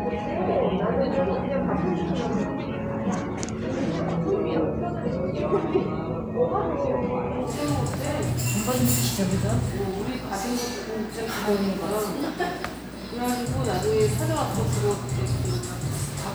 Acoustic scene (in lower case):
cafe